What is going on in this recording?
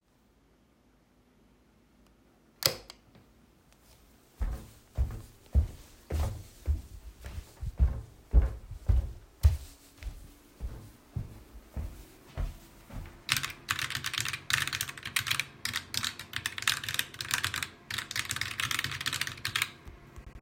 I turned on the light, walked to my desk and started typing on my keyboard.